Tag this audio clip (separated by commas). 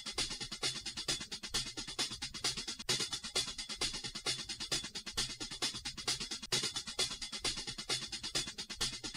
Music